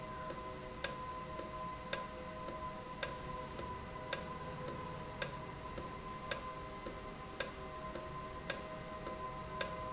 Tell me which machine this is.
valve